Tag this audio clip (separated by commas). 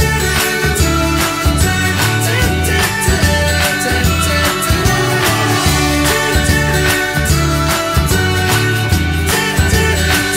Music